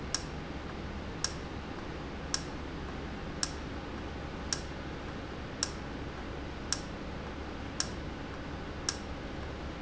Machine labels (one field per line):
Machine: valve